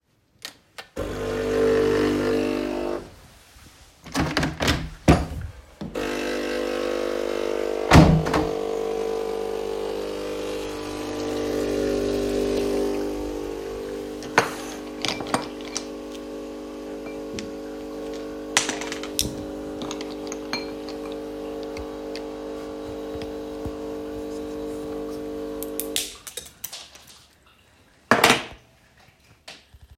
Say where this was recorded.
kitchen